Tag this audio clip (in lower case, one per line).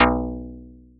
plucked string instrument
music
musical instrument
guitar